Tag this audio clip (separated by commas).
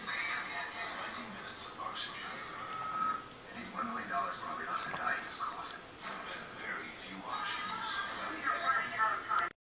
Speech